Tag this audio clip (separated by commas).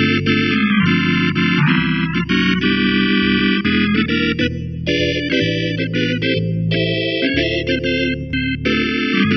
Keyboard (musical), Electric piano, Piano